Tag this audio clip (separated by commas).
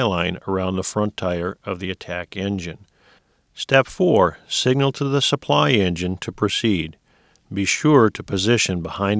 Speech